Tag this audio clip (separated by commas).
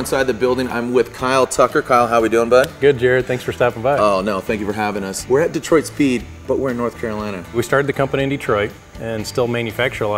Speech, Music